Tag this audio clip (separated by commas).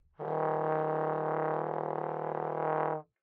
Musical instrument, Music, Brass instrument